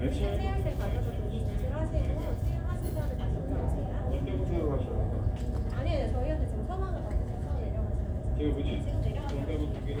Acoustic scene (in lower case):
crowded indoor space